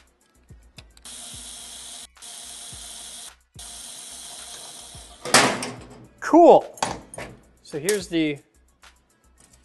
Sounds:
Speech, Tools

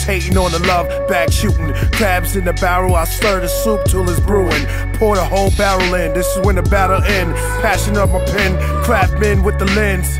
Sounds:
Hip hop music, Music

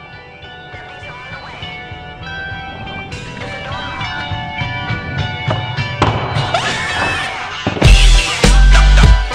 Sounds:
Music, Skateboard

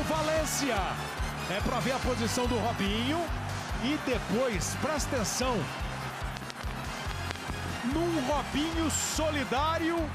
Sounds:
Speech, Music

